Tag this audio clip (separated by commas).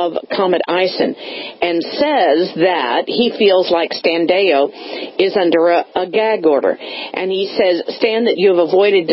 Radio, Speech